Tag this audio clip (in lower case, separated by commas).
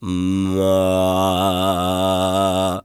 singing, human voice, male singing